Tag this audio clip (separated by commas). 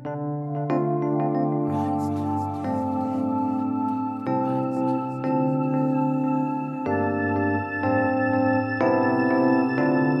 Music, Vibraphone